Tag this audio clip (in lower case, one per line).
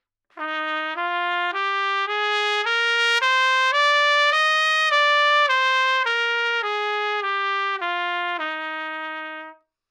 brass instrument
trumpet
music
musical instrument